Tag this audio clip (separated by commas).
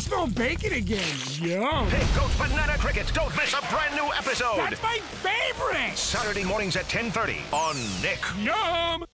Music, Speech